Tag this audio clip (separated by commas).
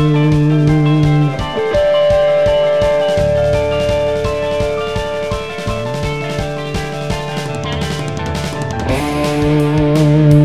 playing electric guitar, Guitar, Music, Musical instrument, Electric guitar, Plucked string instrument